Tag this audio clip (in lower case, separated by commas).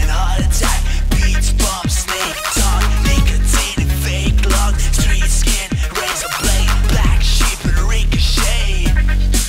music